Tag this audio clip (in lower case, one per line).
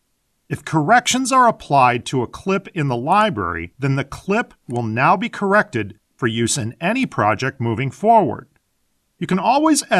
speech